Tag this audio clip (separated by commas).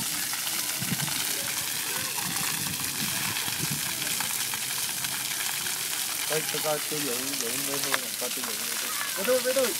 Speech, Water